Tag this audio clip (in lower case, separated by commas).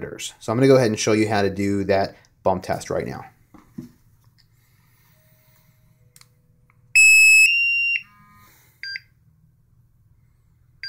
inside a small room, speech